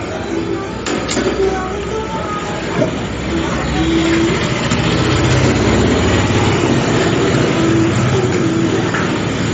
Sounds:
vehicle, music

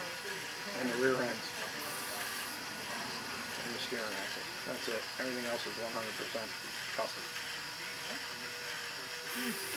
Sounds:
speech

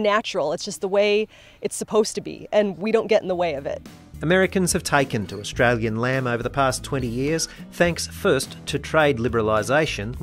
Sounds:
speech, music

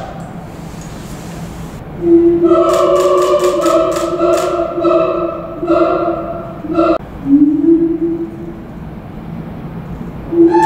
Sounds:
gibbon howling

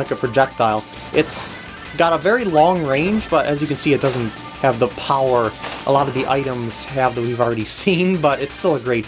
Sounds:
inside a small room, speech, music

